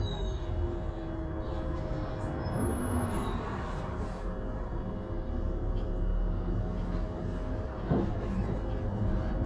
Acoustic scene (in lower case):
bus